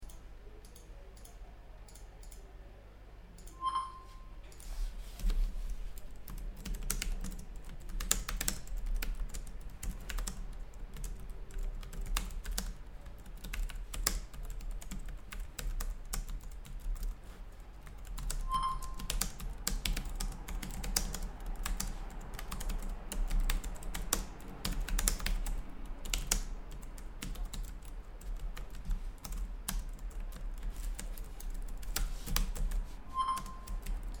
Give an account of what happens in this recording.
I had been working on the computer when I received a notification. I immediately started replying on my computer, typing on a keyboard. While I was using a keyboard, I got a few other notifications.